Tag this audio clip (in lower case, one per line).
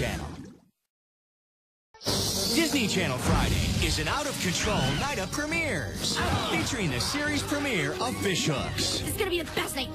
music
speech